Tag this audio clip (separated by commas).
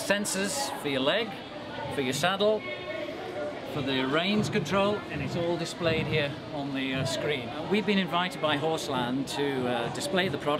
Speech